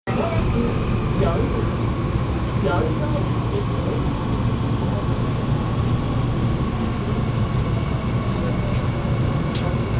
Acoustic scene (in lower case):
subway train